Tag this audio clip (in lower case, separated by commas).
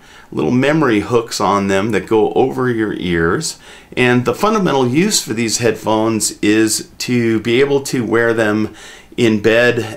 speech